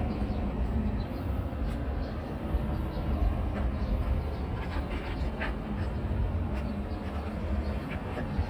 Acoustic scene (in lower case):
residential area